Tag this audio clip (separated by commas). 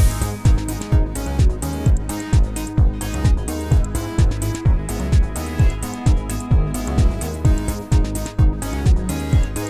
Music